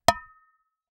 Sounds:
dishes, pots and pans, Domestic sounds

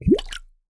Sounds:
Water, Gurgling

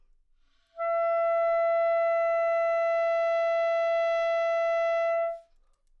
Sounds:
Musical instrument, Wind instrument, Music

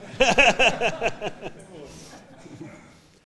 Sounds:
Laughter, Human voice

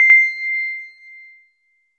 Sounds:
Piano, Keyboard (musical), Music, Musical instrument

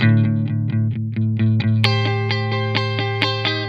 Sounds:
Plucked string instrument, Musical instrument, Electric guitar, Guitar, Music

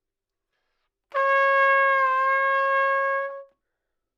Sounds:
Music, Brass instrument, Musical instrument, Trumpet

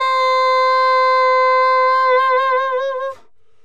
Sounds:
Wind instrument, Music, Musical instrument

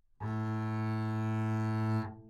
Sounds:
Music, Bowed string instrument, Musical instrument

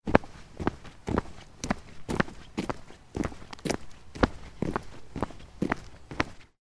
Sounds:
Walk

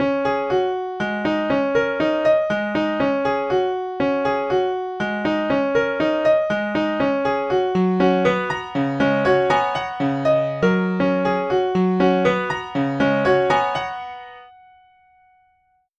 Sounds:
Piano, Keyboard (musical), Musical instrument, Music

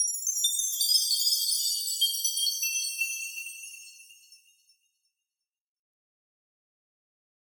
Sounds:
Chime, Bell

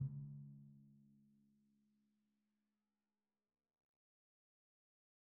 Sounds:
Drum, Percussion, Music, Musical instrument

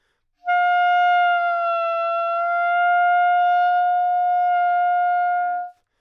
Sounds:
woodwind instrument, Musical instrument, Music

